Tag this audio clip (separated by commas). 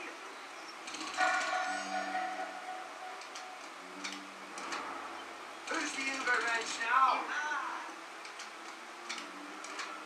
Speech